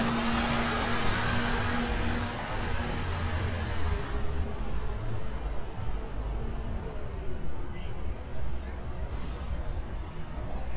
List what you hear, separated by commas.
engine of unclear size